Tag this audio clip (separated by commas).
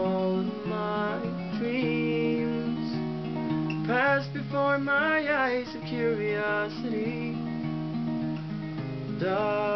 Music